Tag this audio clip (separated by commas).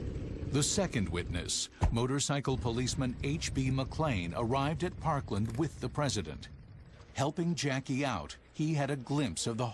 Speech